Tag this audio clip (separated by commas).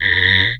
Wood